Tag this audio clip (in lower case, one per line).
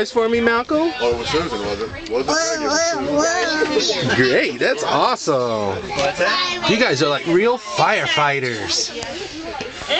speech
kid speaking